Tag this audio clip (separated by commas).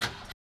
Car, Motor vehicle (road), Engine, Vehicle